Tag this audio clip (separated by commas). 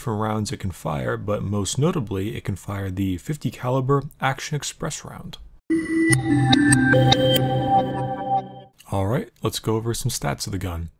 inside a large room or hall, Music, Speech